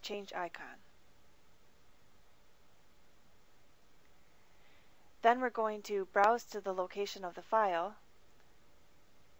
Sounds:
clicking, speech

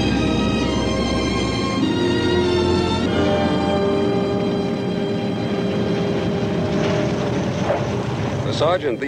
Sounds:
music, speech

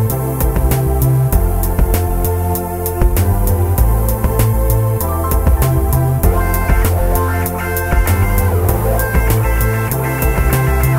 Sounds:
music

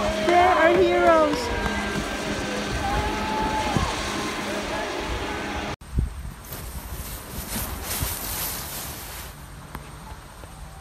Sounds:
skiing

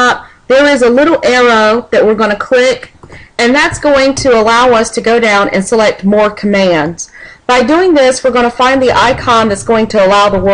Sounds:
speech

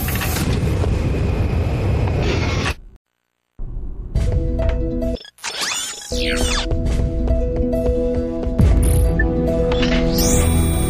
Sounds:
music

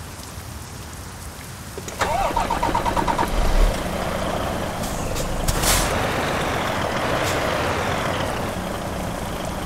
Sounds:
truck, vehicle

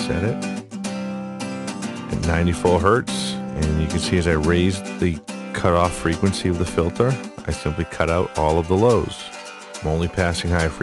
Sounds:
speech, music

